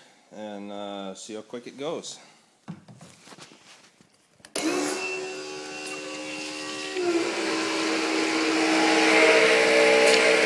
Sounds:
speech

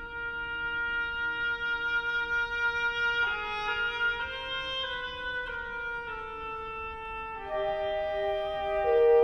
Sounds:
wind instrument
musical instrument
classical music
music

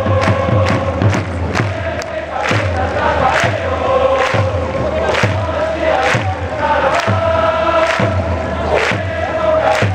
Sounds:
music

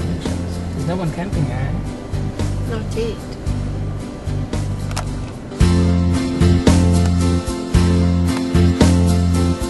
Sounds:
music
speech

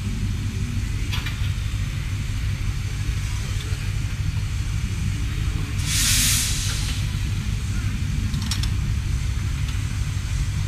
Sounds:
engine
heavy engine (low frequency)

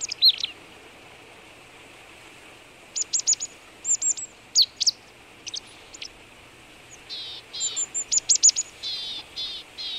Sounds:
black capped chickadee calling

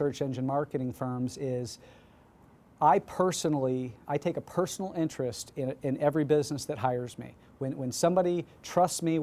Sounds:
speech

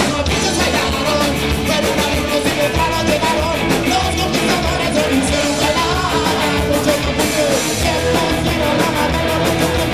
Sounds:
roll
rock and roll
music

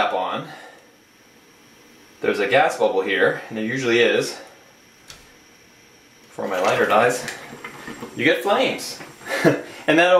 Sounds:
speech

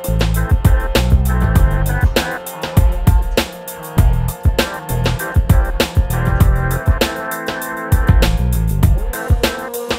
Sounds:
music

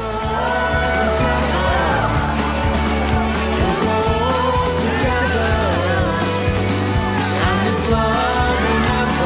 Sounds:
music

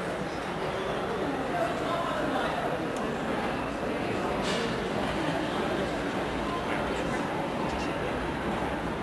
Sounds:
speech

